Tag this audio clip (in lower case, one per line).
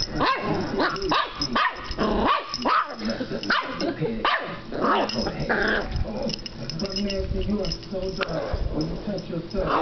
bow-wow
inside a small room
domestic animals
animal
bark
yip
dog
speech